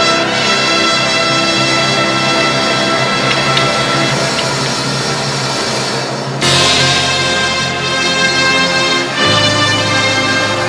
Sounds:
music

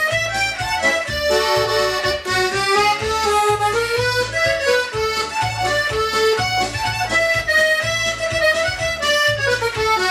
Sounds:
music, harmonica, musical instrument, accordion

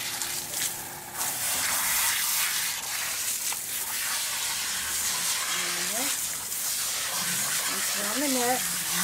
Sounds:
speech, gush

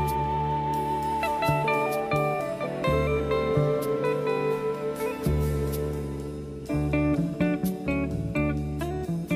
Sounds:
slide guitar, music

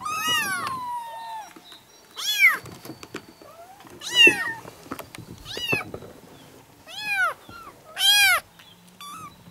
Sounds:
cat caterwauling

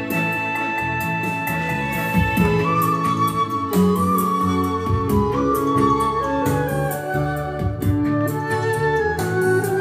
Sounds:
playing electronic organ

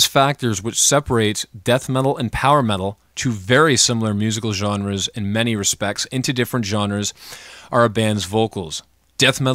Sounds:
speech

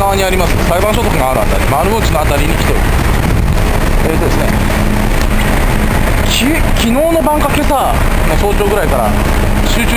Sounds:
rain on surface, rain

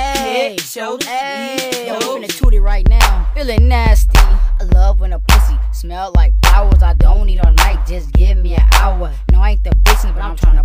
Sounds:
music

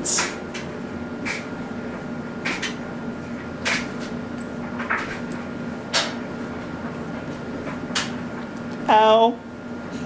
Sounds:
speech

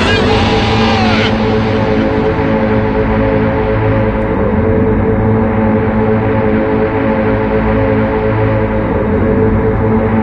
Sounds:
music, scary music

